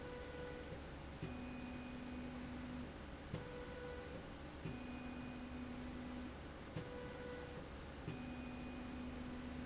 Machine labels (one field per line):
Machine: slide rail